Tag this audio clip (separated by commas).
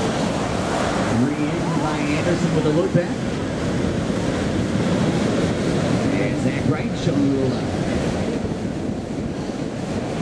Speech